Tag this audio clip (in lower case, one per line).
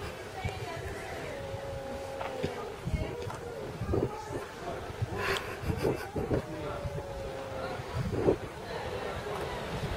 pets
speech